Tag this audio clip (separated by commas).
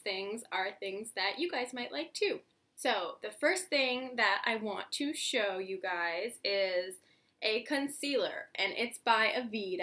Speech